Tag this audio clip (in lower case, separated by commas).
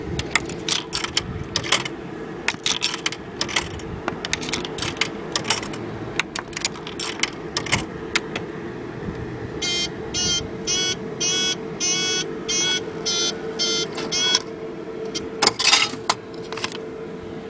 alarm, home sounds, coin (dropping)